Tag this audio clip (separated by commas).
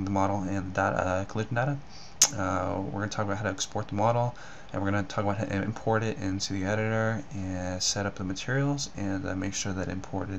Speech